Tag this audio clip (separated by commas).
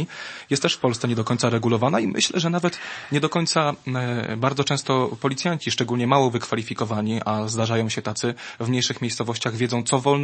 Speech